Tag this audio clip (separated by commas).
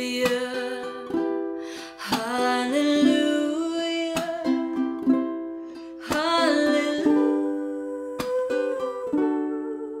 playing ukulele